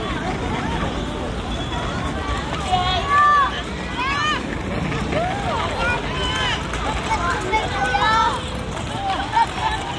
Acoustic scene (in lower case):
park